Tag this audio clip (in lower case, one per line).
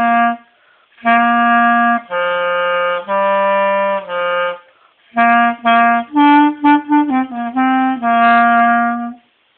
music